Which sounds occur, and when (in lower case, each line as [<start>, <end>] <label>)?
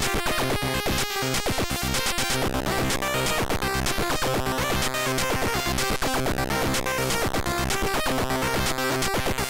[0.00, 9.45] music